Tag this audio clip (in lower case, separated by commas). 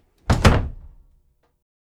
door, home sounds, slam